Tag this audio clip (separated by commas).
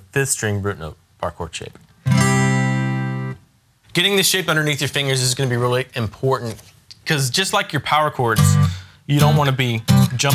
Music, Speech, Musical instrument, Acoustic guitar, Strum, Guitar, Plucked string instrument